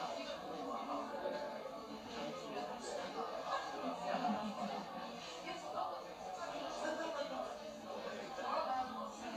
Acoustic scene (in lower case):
crowded indoor space